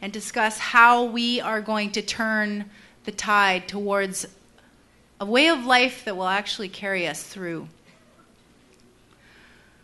A woman delivering a speech